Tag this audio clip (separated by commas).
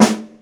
Drum, Musical instrument, Snare drum, Percussion, Music